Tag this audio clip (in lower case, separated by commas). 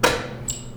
door, domestic sounds